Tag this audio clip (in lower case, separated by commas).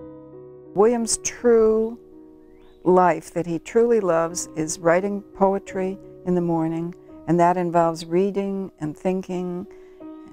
speech, music